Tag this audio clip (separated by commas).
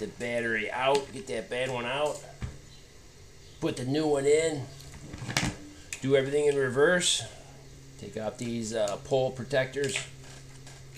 Speech